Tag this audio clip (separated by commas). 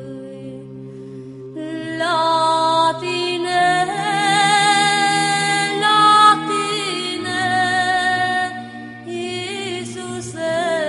Music, Mantra